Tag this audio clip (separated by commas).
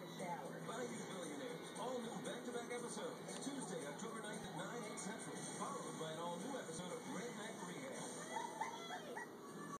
Music, Speech